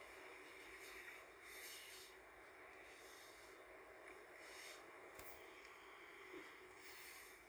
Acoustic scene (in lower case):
car